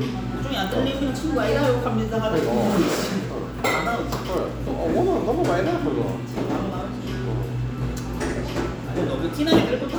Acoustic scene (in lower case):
cafe